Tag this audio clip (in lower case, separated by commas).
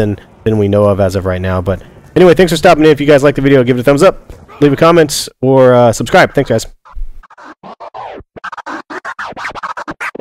speech